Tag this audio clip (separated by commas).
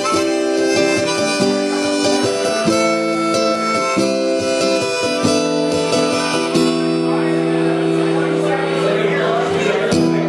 woodwind instrument, Harmonica